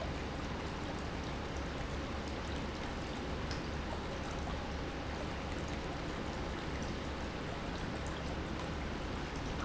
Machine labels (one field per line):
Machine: pump